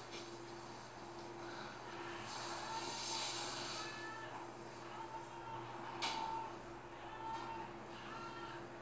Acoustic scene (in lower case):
elevator